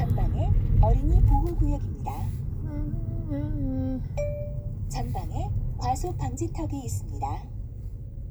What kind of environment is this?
car